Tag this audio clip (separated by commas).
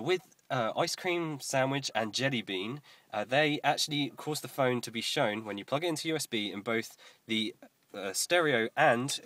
Speech